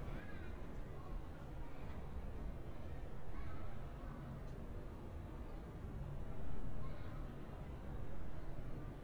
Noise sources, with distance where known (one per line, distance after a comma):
person or small group shouting, far